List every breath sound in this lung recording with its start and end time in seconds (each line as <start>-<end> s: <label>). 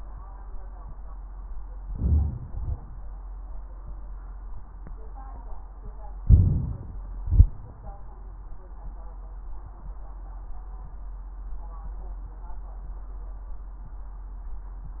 1.83-2.47 s: inhalation
2.46-2.96 s: exhalation
6.22-7.14 s: inhalation
7.11-7.57 s: exhalation